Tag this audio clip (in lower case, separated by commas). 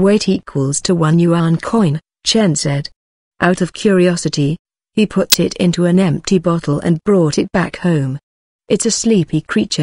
speech